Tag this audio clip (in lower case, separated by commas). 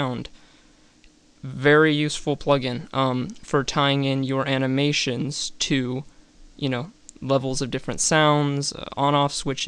speech